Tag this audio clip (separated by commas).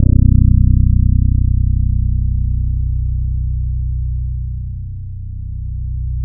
Plucked string instrument, Music, Guitar, Bass guitar, Musical instrument